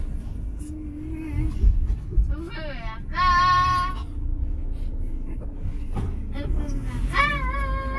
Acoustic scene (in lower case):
car